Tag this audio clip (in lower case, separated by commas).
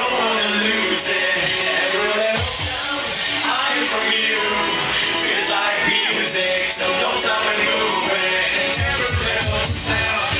independent music, soundtrack music, music